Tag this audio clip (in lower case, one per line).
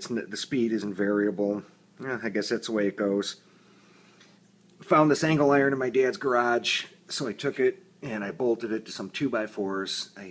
speech